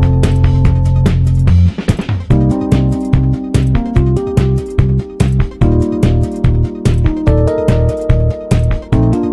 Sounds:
music

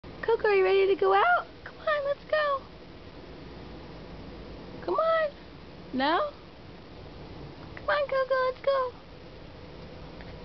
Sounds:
speech

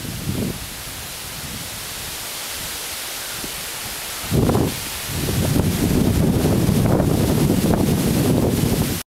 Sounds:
wind rustling leaves, rustling leaves

